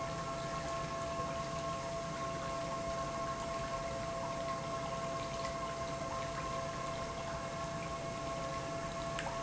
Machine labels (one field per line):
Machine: pump